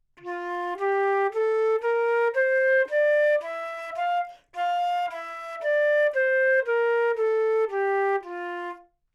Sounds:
Music, Musical instrument, woodwind instrument

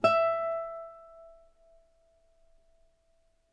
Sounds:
Music, Musical instrument, Plucked string instrument, Guitar

